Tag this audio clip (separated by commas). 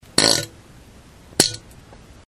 Fart